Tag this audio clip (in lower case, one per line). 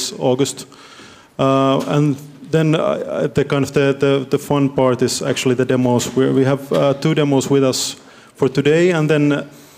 speech